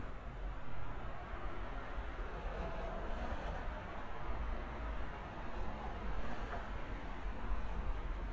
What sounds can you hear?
background noise